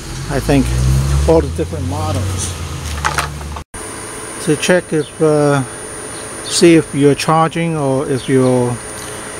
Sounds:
Car, Vehicle, Speech

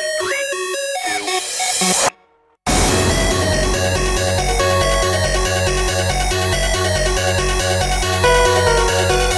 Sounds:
Music, Video game music

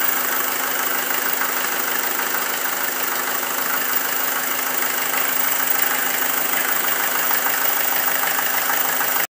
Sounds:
Heavy engine (low frequency)

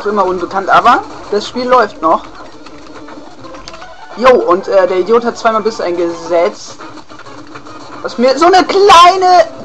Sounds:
Music, Speech

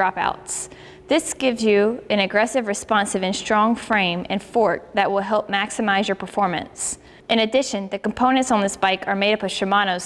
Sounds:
Speech

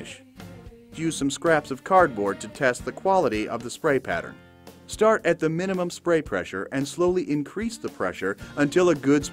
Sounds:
Music, Speech

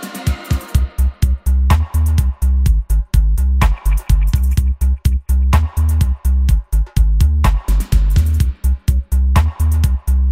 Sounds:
Music

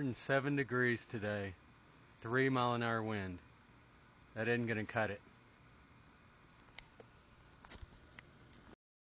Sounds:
Speech

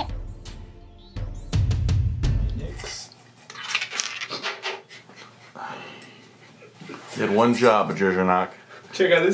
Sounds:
Speech, Music

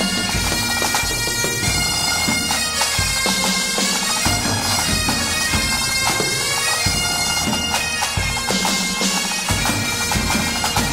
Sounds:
Music

